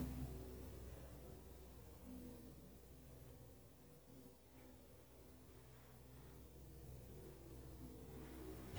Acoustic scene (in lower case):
elevator